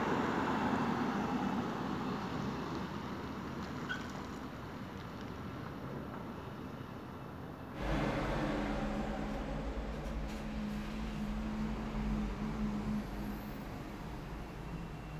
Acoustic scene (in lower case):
street